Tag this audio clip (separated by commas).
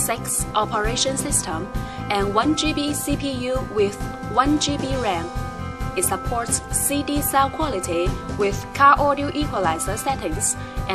Music, Speech